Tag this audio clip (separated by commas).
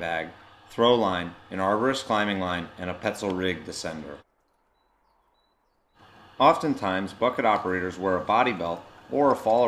Speech